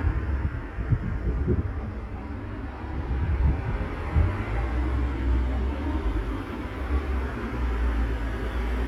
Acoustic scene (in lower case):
street